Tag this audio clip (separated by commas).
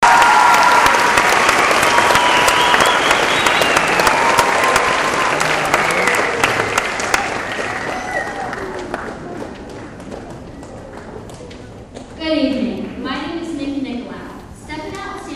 Human group actions, Applause